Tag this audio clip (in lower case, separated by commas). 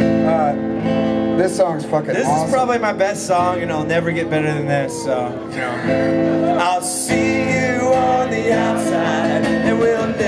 music, speech